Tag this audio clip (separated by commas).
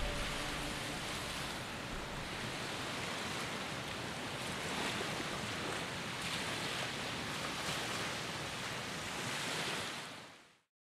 White noise